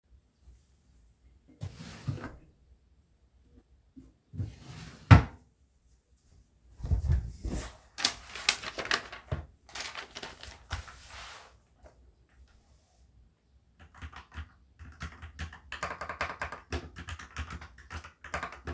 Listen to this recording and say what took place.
I was siting at the desk, opened the drawer, took out my notebook and opened it. Then I started typing on my keyboard.